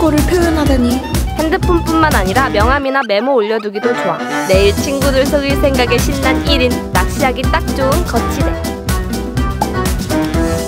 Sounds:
ice cream truck

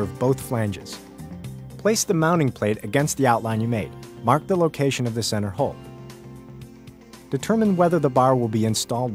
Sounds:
Music, Speech

